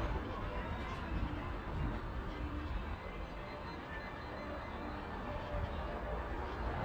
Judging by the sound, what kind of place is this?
residential area